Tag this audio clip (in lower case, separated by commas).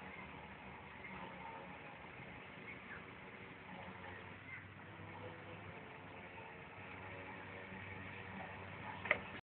speedboat